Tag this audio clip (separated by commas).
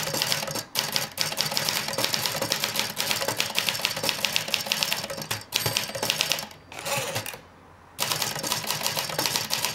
Typing, Typewriter